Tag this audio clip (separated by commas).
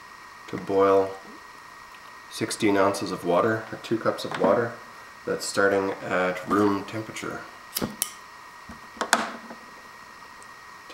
Wood, Speech, inside a small room